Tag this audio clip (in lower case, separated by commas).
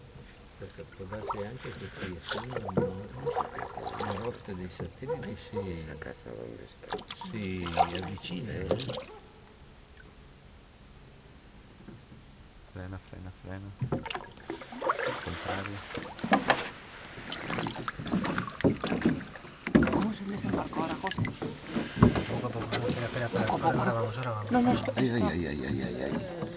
vehicle, boat